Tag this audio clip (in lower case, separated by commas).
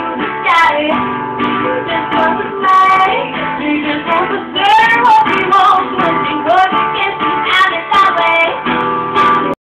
female singing, music